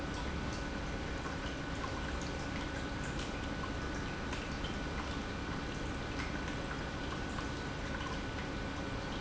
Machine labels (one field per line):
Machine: pump